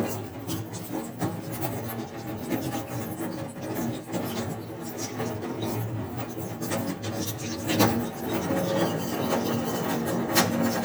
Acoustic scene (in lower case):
restroom